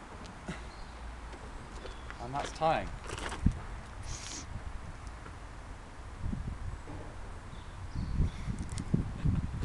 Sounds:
Speech, outside, rural or natural

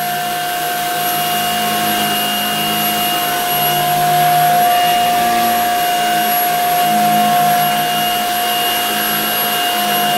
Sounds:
vacuum cleaner cleaning floors

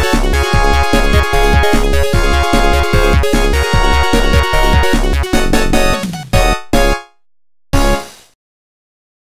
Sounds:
Music

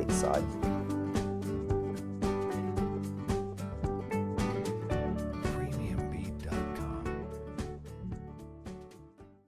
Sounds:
Music, Speech

